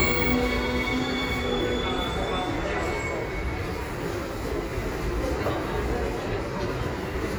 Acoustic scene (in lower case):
subway station